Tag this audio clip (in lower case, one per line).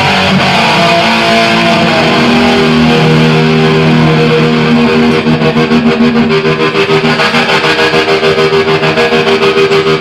electric guitar
plucked string instrument
music
strum
musical instrument
guitar